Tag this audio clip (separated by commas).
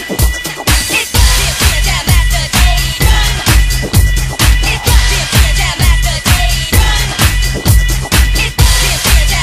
Music